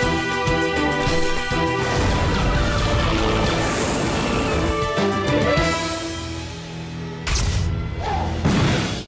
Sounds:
Music, Vehicle

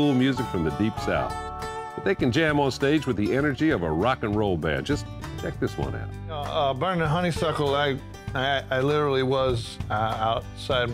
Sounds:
Music, Speech

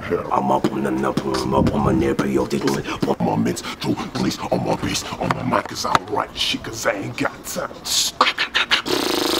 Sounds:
Beatboxing, Vocal music

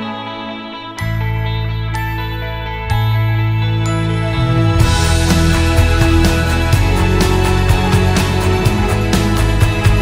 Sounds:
Music

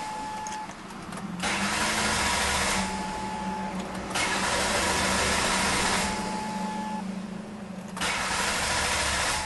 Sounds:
car engine starting

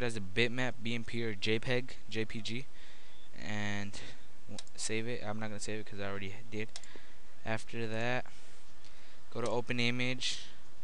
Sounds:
Speech

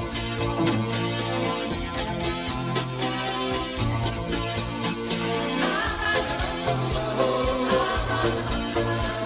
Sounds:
Music

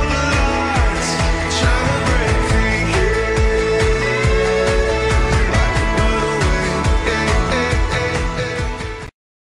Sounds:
Music

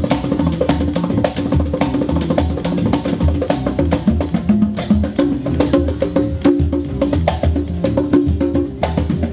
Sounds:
Music, outside, urban or man-made

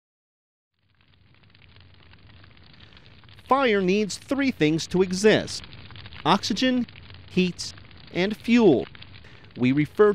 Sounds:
Fire

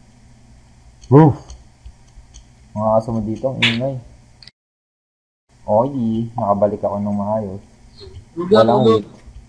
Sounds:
Speech

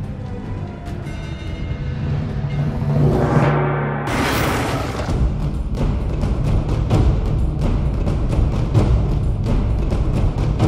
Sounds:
Music

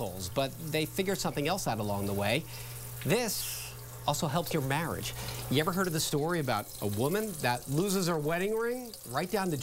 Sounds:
Speech, Sink (filling or washing)

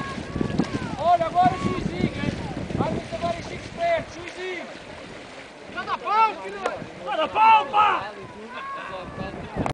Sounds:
outside, rural or natural, Speech

